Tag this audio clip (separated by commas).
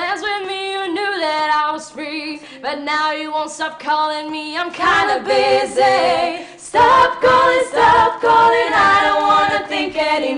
Female singing